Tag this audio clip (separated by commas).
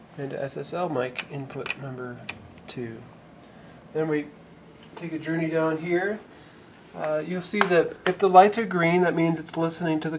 Speech